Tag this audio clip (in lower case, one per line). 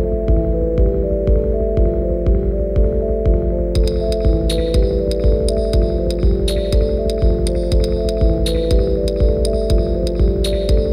music